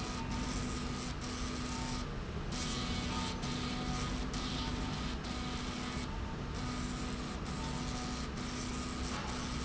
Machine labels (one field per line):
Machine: slide rail